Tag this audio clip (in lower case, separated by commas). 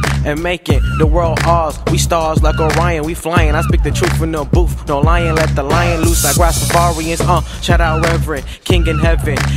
rapping, music